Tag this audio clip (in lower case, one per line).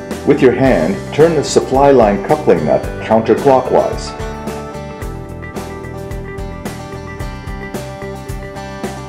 music
speech